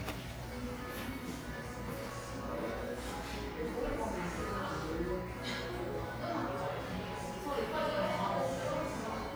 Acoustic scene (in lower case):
cafe